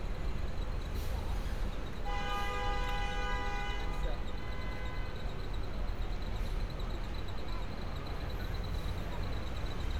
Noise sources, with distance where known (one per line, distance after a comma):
car horn, far
person or small group talking